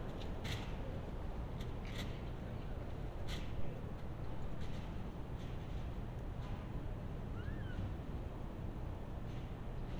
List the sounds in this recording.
background noise